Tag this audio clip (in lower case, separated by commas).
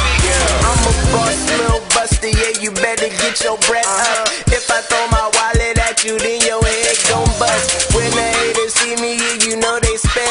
music, blues, independent music